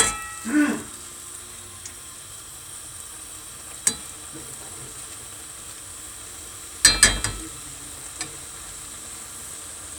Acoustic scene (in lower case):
kitchen